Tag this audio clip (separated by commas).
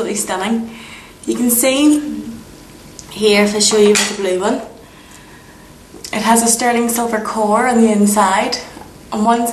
Speech